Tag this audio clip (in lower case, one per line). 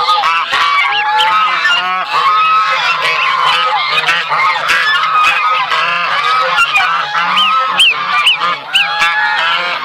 goose honking